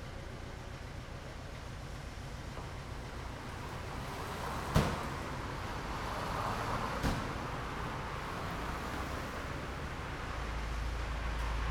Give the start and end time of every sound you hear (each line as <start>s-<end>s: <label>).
0.0s-11.7s: car
0.0s-11.7s: car engine idling
2.5s-11.7s: car wheels rolling